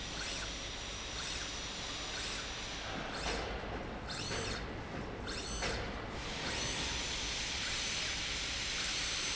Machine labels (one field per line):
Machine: slide rail